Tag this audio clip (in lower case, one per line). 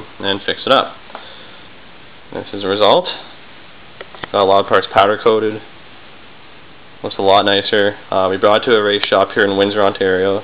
speech